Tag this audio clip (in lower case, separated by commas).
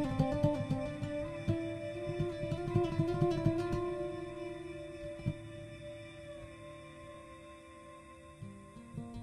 strum, music, guitar, plucked string instrument, musical instrument, acoustic guitar